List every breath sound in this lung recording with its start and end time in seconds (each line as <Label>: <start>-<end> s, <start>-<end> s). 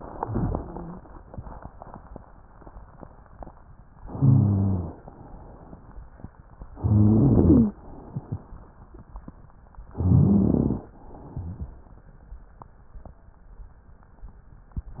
Inhalation: 4.02-4.98 s, 6.77-7.77 s, 9.96-10.86 s
Rhonchi: 4.02-4.98 s, 6.77-7.77 s, 9.96-10.86 s